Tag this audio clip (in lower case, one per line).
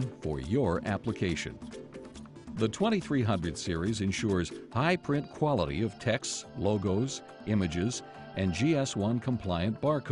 music
speech